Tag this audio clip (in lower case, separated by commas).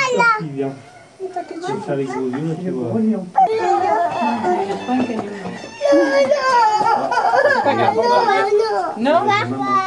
crying, speech